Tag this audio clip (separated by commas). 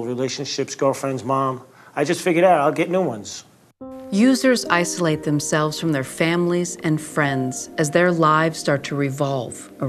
Speech, Music